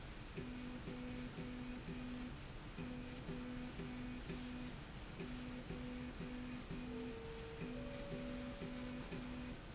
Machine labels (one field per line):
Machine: slide rail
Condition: normal